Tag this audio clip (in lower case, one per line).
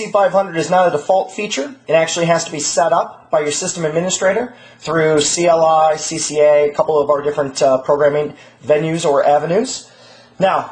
speech